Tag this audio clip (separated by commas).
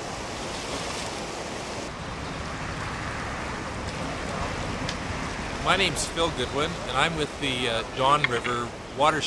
canoe, Vehicle, Speech